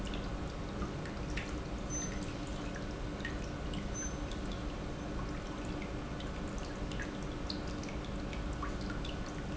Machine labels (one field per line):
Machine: pump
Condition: normal